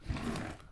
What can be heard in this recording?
wooden drawer opening